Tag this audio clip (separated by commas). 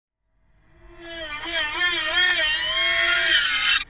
Screech